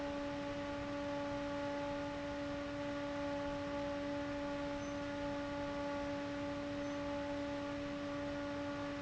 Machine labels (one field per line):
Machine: fan